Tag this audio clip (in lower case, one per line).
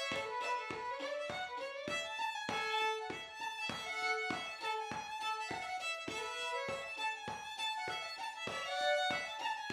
music
musical instrument
fiddle